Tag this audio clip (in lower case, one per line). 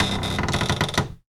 cupboard open or close
domestic sounds